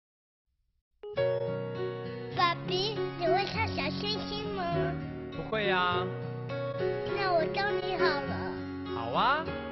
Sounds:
music, child speech

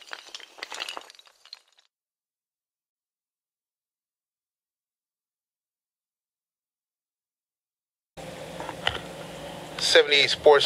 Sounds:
speech

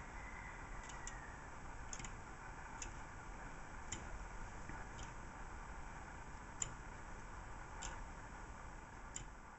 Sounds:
tick-tock

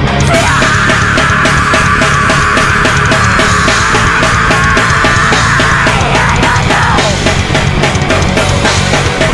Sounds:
music

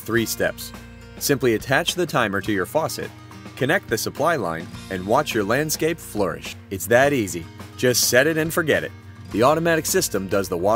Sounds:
speech, music

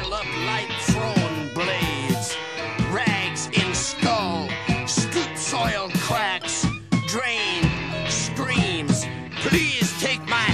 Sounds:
music, speech

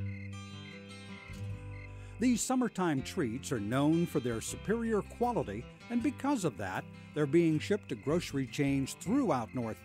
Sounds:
speech, music

